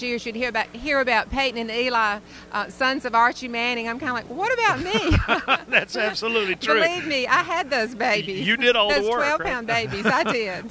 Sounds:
Speech

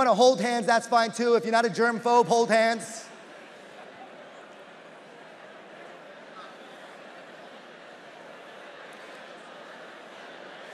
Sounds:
Speech

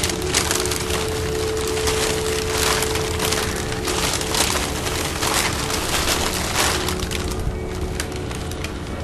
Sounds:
Music, Speech

